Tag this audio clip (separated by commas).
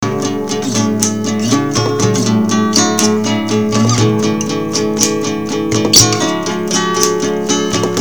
Plucked string instrument, Guitar, Music, Musical instrument, Acoustic guitar